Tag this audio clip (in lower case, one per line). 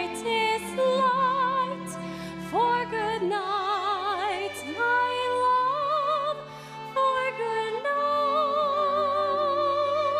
music